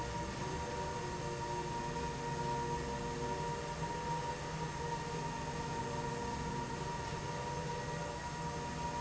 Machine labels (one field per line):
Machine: slide rail